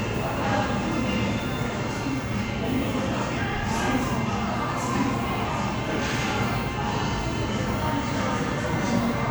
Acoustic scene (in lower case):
crowded indoor space